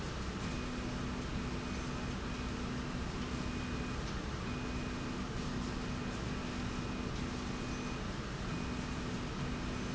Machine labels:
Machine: slide rail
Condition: normal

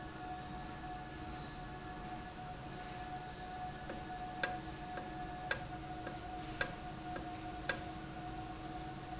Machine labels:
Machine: valve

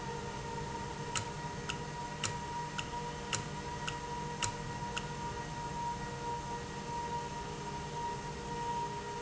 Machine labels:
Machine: valve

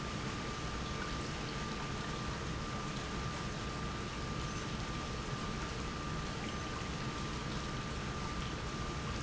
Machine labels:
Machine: pump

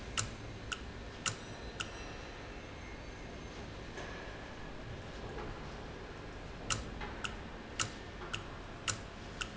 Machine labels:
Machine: valve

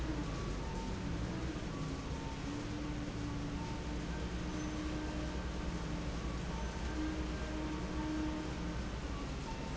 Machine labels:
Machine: fan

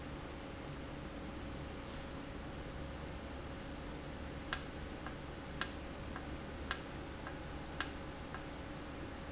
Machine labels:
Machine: valve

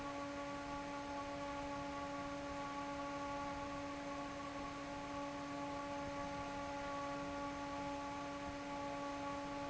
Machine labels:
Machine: fan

